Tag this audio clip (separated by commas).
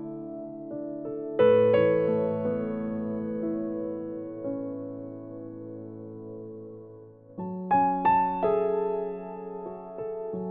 Piano, playing piano, Keyboard (musical)